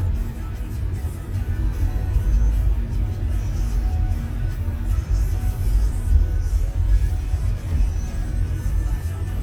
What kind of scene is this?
car